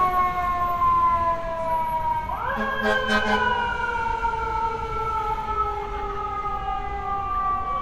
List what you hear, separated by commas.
siren, person or small group talking